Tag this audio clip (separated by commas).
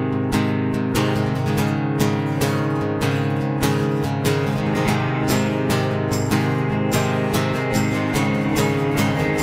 Music